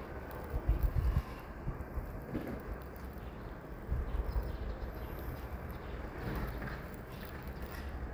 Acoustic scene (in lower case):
residential area